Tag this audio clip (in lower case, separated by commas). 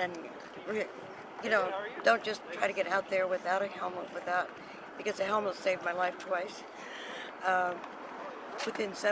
speech